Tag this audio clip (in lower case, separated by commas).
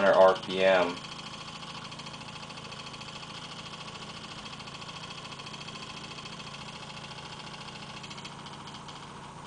inside a small room, speech